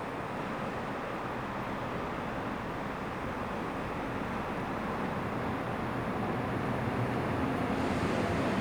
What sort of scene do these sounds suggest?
subway station